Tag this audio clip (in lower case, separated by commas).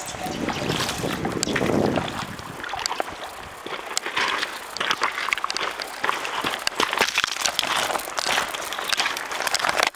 stream, stream burbling